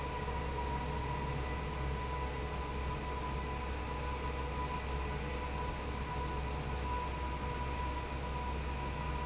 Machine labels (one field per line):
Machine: fan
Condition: abnormal